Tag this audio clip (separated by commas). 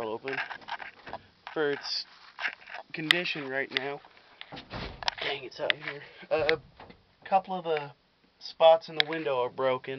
Speech